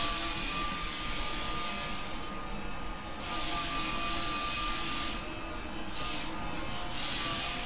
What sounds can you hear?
large rotating saw